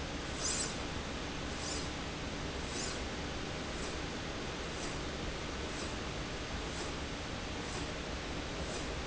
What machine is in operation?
slide rail